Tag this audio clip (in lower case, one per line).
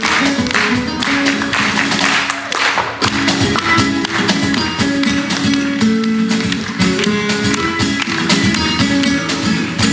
guitar
strum
music
musical instrument
plucked string instrument